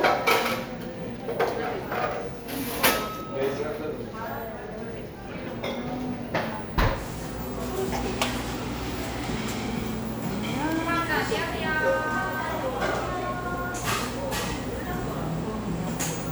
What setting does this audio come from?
cafe